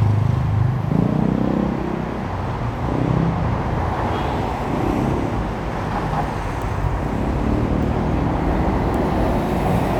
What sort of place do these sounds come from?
street